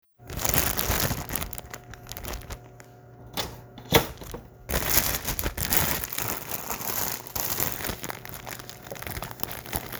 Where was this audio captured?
in a kitchen